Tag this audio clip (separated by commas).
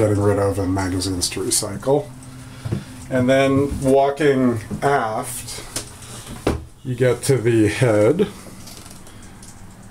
Speech